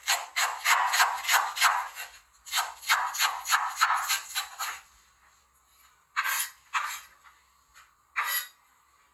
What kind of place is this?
kitchen